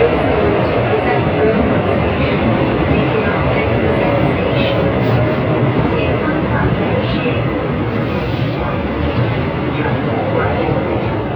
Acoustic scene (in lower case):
subway train